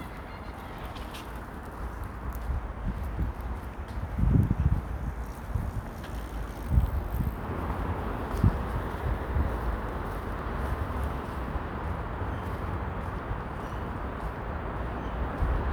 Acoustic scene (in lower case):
residential area